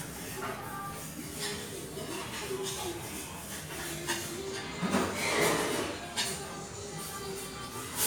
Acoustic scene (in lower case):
restaurant